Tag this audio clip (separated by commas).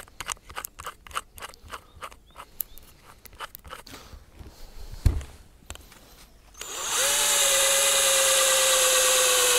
Drill